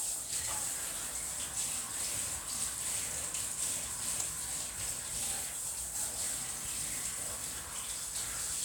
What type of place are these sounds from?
kitchen